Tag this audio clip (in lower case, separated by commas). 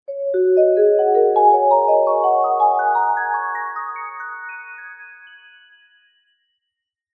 mallet percussion, percussion, musical instrument, music